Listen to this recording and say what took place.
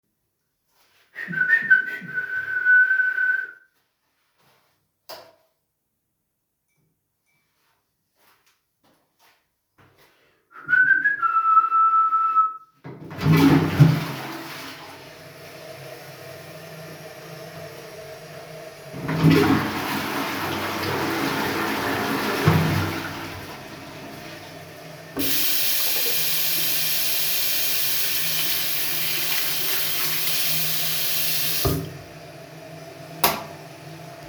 I switched the light on or off, flushed the toilet, and then turned on the tap. The events happen one after another in a bathroom routine.